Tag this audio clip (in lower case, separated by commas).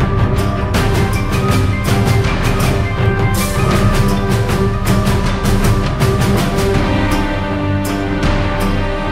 music